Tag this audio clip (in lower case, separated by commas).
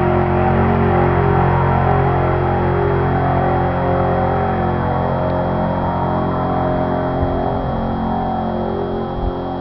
vehicle, truck